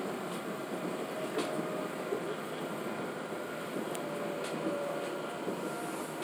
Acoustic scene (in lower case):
subway train